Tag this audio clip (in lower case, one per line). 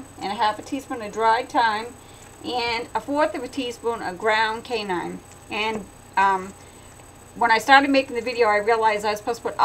speech